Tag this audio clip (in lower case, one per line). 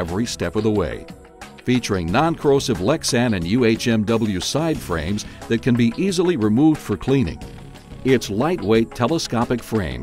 music
speech